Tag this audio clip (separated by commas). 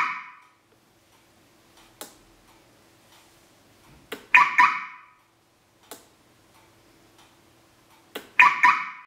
Buzzer